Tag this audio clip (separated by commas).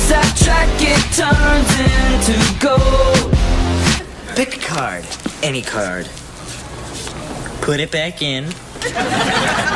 Music, Speech